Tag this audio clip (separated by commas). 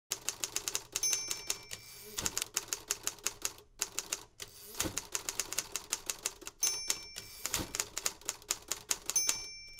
Typewriter, typing on typewriter